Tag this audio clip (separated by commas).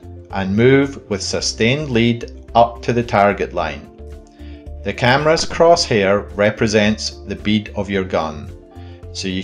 cap gun shooting